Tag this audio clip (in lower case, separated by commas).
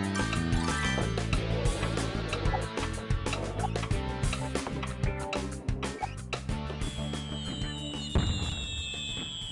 music